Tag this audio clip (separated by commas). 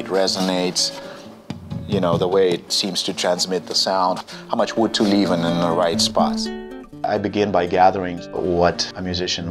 Speech, Music